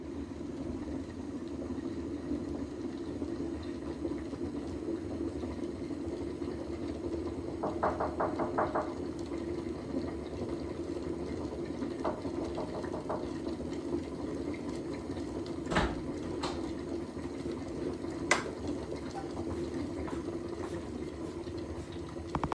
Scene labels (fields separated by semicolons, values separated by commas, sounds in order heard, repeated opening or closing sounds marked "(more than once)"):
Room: kitchen; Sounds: coffee machine, door, footsteps